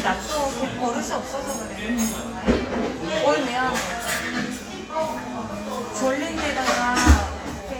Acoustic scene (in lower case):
cafe